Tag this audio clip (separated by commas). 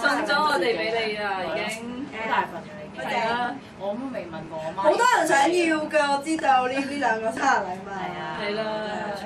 Speech